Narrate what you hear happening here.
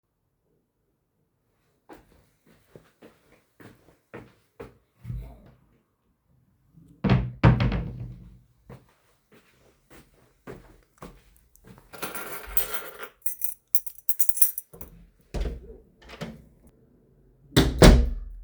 I walked to my wardrobe opened it picked some clothes than closed it. Then i proceeded to pick up my keys open the door, left and closed it again.